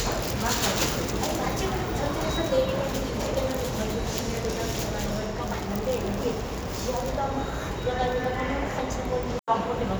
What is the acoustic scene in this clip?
subway station